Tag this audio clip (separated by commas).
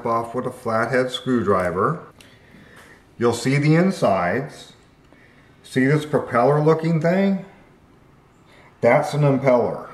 Speech